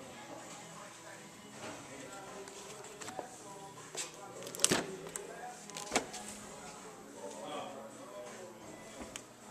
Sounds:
speech, music

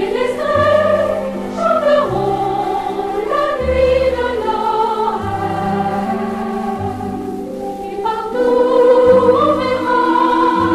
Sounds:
music

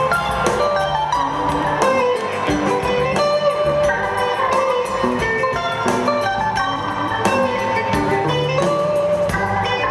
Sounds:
music

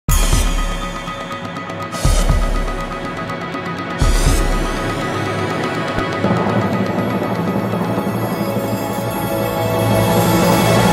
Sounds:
music

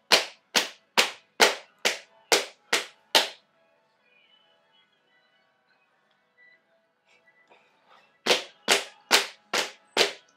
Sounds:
music, percussion

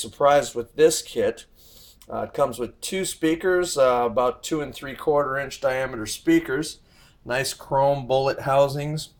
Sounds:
speech

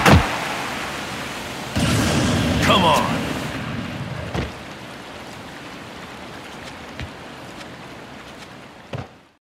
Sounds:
whack

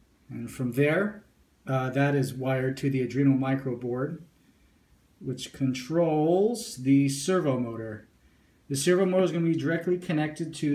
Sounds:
speech

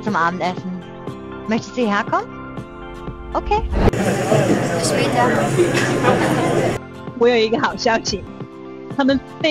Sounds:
speech, music

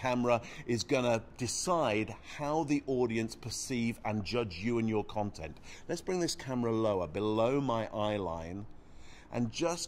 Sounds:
speech

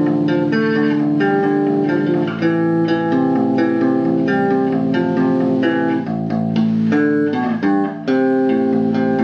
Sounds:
music

